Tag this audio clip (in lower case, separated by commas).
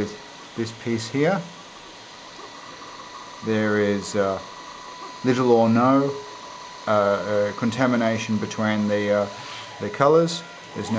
speech